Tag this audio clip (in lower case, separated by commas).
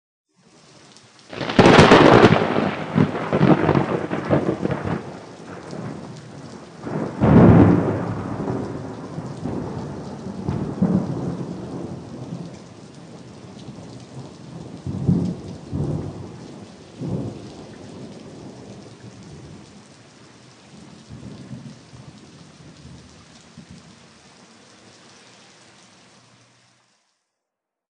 rain, water, thunder, thunderstorm